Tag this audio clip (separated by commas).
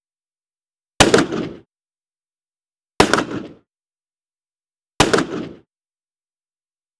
Explosion, gunfire